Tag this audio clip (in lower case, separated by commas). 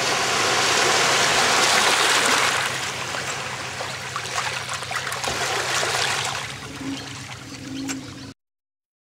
car, vehicle